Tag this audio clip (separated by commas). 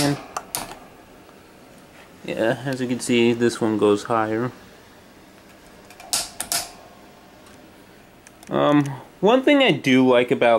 Speech